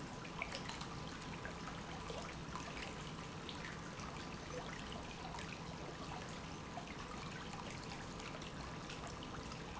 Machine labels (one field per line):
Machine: pump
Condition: normal